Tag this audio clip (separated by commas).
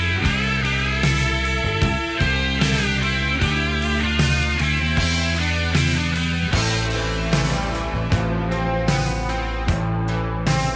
Musical instrument, Plucked string instrument, Guitar, playing electric guitar, Music, Electric guitar